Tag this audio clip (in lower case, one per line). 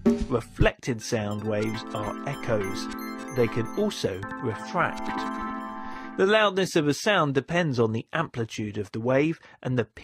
speech
music